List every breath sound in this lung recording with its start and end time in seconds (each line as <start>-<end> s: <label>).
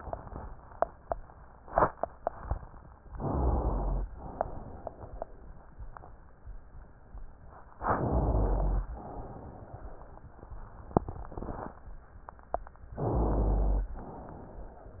3.10-4.06 s: inhalation
3.19-4.10 s: rhonchi
4.11-5.65 s: exhalation
7.79-8.92 s: inhalation
8.00-9.04 s: rhonchi
8.90-10.29 s: exhalation
12.97-13.92 s: inhalation
12.97-13.92 s: rhonchi